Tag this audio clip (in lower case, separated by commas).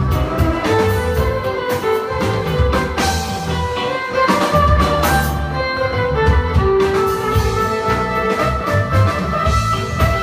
music, violin, musical instrument